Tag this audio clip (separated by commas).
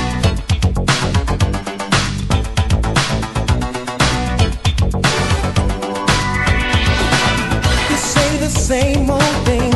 Music